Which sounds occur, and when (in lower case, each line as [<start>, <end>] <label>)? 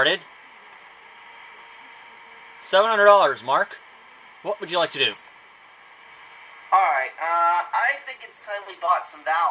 [0.00, 0.20] male speech
[0.00, 9.50] mechanisms
[1.93, 1.99] tick
[2.61, 3.77] male speech
[4.37, 5.26] male speech
[5.09, 5.16] tick
[6.64, 9.50] male speech
[6.71, 9.50] conversation